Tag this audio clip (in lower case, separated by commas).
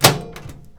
microwave oven, domestic sounds